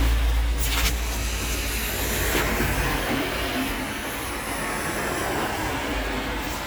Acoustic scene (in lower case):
street